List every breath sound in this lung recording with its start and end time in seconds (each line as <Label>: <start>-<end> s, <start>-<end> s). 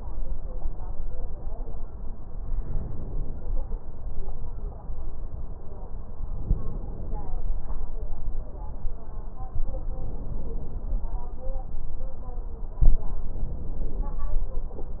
Inhalation: 2.43-3.53 s, 6.29-7.39 s, 9.77-11.08 s, 12.91-14.22 s